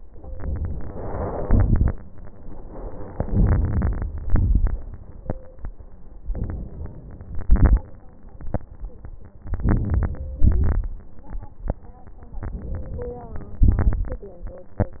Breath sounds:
0.33-1.46 s: inhalation
1.43-1.95 s: crackles
1.44-1.91 s: exhalation
3.11-4.05 s: crackles
3.14-4.04 s: inhalation
4.20-4.79 s: crackles
4.21-4.79 s: exhalation
6.27-7.31 s: inhalation
7.32-7.86 s: exhalation
7.33-7.88 s: crackles
9.47-10.40 s: crackles
9.47-10.42 s: inhalation
10.42-10.98 s: crackles
10.45-10.99 s: exhalation
12.45-13.65 s: inhalation
13.67-14.24 s: exhalation
13.67-14.24 s: crackles

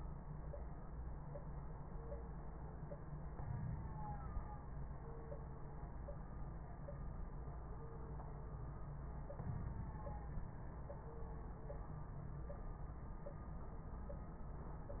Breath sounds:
3.31-4.30 s: inhalation
3.31-4.30 s: crackles
9.38-10.45 s: inhalation

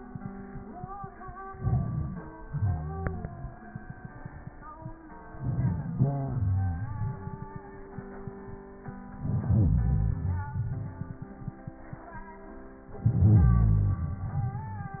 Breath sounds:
1.49-2.44 s: crackles
1.50-2.47 s: inhalation
2.45-3.68 s: exhalation
5.33-6.00 s: inhalation
6.01-7.65 s: exhalation
9.12-9.92 s: crackles
9.14-9.92 s: inhalation
9.95-11.38 s: exhalation
9.95-11.38 s: crackles

